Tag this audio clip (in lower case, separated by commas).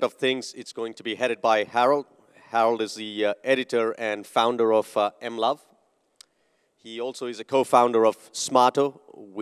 speech